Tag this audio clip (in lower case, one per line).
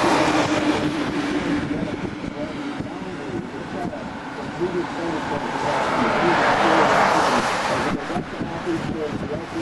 speech